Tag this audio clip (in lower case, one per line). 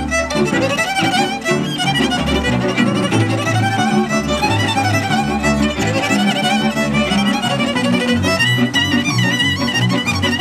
independent music
music